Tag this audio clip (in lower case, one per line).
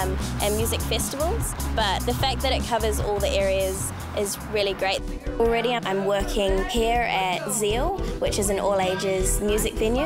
music
speech